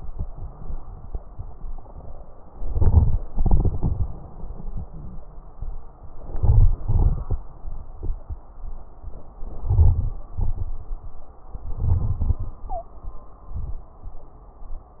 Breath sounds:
2.46-3.27 s: inhalation
2.46-3.27 s: crackles
3.29-5.22 s: exhalation
3.29-5.22 s: crackles
6.00-6.83 s: inhalation
6.00-6.83 s: crackles
6.86-7.68 s: exhalation
6.86-7.68 s: crackles
10.28-11.36 s: inhalation
10.28-11.36 s: crackles
11.50-13.55 s: exhalation
11.50-13.55 s: crackles
12.63-13.11 s: wheeze

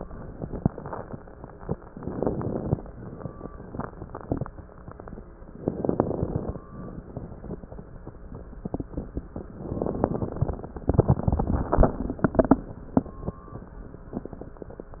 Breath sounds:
0.00-1.10 s: exhalation
1.89-2.81 s: inhalation
1.89-2.81 s: crackles
2.97-4.46 s: exhalation
5.54-6.61 s: inhalation
5.54-6.61 s: crackles
6.73-8.22 s: exhalation
9.67-10.86 s: inhalation
9.67-10.86 s: crackles

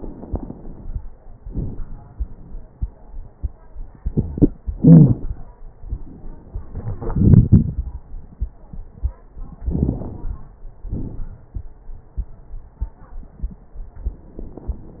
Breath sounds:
0.00-0.99 s: inhalation
0.00-0.99 s: crackles
1.42-1.80 s: exhalation
1.42-1.80 s: crackles
4.79-5.18 s: wheeze
9.58-10.51 s: inhalation
9.58-10.51 s: crackles
10.85-11.53 s: exhalation
10.85-11.53 s: crackles

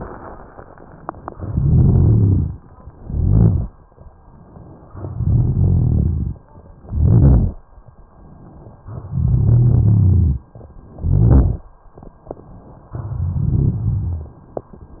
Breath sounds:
1.29-2.52 s: inhalation
1.29-2.54 s: crackles
2.98-3.68 s: exhalation
2.98-3.68 s: crackles
5.05-6.38 s: inhalation
5.05-6.38 s: crackles
6.83-7.57 s: exhalation
6.83-7.57 s: crackles
8.99-10.46 s: inhalation
8.99-10.46 s: crackles
10.95-11.69 s: exhalation
10.95-11.69 s: crackles
12.94-14.40 s: inhalation
12.94-14.40 s: crackles

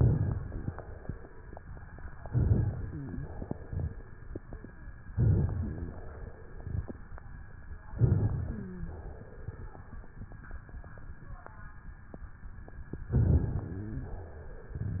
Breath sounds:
0.00-0.70 s: inhalation
0.00-0.70 s: crackles
2.26-3.19 s: inhalation
2.26-3.19 s: crackles
5.12-6.05 s: inhalation
5.12-6.05 s: crackles
7.93-8.86 s: inhalation
7.93-8.86 s: crackles
8.42-8.86 s: wheeze
13.17-14.12 s: inhalation
13.17-14.12 s: crackles
13.56-14.25 s: wheeze

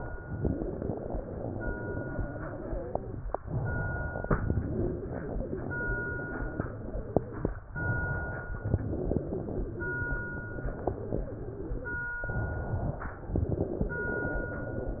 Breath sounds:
0.27-3.11 s: inhalation
3.34-4.24 s: exhalation
4.33-7.40 s: inhalation
7.74-8.64 s: exhalation
8.73-12.03 s: inhalation
12.24-13.27 s: exhalation
13.30-15.00 s: inhalation

